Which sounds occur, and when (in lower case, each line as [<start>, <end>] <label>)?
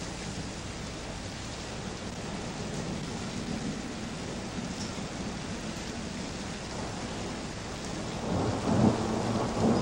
[0.00, 9.81] rain on surface
[4.70, 4.89] generic impact sounds
[7.89, 9.81] thunder
[9.73, 9.81] generic impact sounds